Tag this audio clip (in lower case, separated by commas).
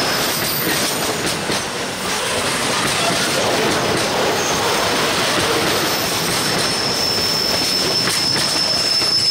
train wheels squealing